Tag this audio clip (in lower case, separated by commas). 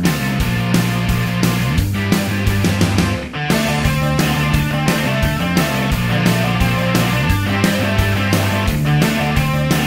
music